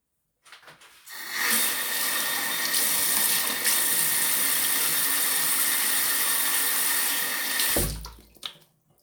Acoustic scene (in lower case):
restroom